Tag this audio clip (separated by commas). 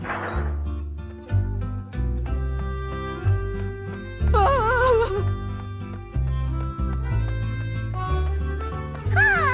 outside, urban or man-made, Music